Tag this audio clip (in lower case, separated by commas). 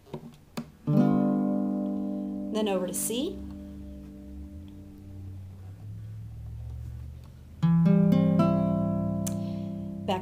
acoustic guitar, inside a small room, music, speech, guitar, plucked string instrument, musical instrument